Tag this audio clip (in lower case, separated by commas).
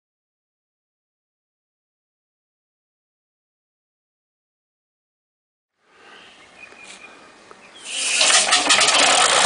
engine